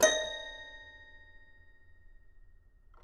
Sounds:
Keyboard (musical), Musical instrument, Music

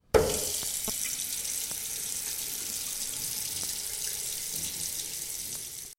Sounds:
Domestic sounds, faucet

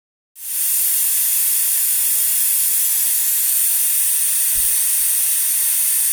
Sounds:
Hiss

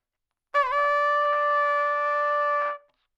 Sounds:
Musical instrument, Brass instrument, Music, Trumpet

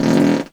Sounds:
Fart

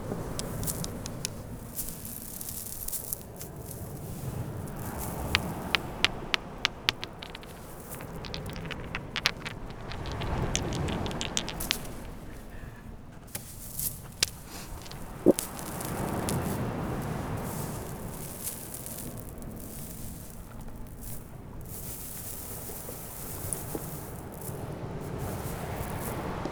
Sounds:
Water, Ocean

